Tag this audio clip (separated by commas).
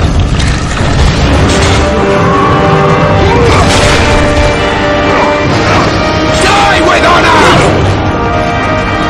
Music, Speech